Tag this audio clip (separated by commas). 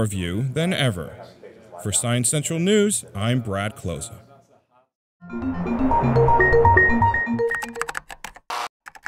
Music, Speech